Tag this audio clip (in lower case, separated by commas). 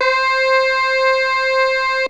music, keyboard (musical), musical instrument